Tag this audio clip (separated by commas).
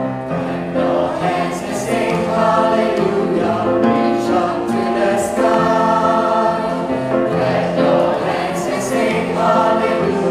Choir, Music, Gospel music, Singing